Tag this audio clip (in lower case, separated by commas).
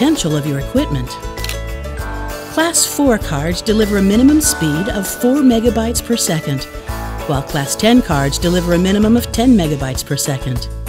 speech, music